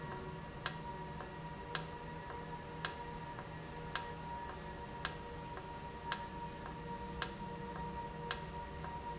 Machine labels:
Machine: valve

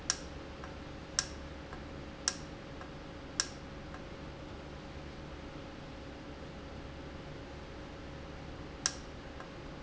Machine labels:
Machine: valve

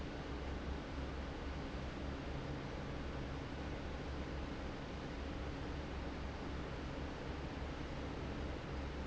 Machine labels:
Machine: fan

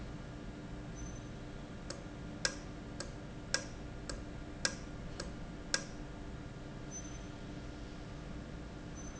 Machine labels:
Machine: valve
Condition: normal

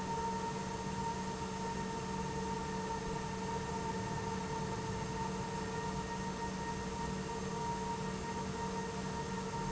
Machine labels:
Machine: pump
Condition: normal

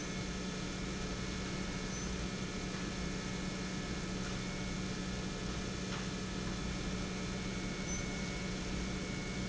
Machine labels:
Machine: pump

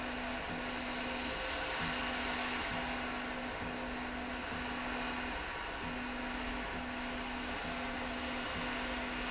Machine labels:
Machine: slide rail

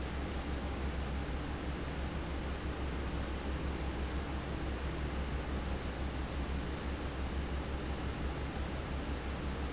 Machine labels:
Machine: fan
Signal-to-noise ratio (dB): -6 dB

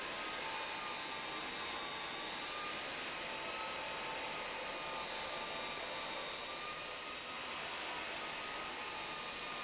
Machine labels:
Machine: pump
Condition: abnormal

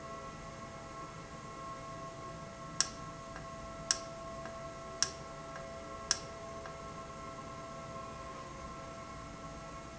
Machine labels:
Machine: valve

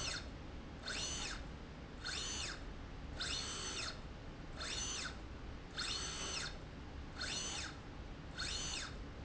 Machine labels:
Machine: slide rail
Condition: normal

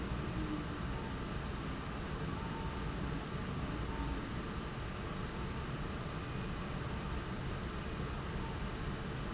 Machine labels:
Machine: fan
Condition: abnormal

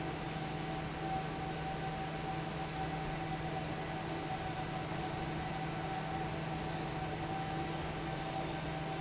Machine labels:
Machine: fan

